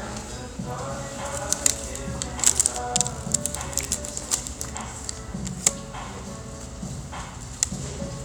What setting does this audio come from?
restaurant